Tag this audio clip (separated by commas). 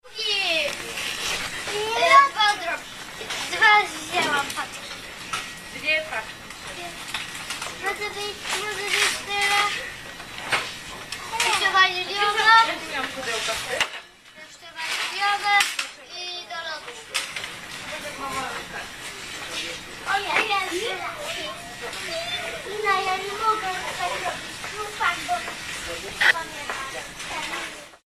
Human voice, Conversation, Speech